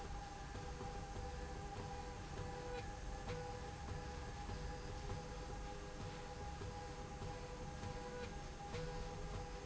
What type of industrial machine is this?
slide rail